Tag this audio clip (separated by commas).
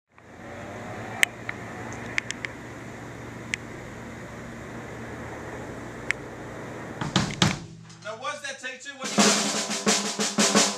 Speech, Music, outside, urban or man-made